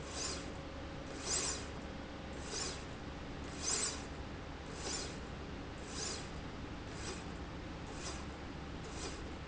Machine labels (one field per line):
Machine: slide rail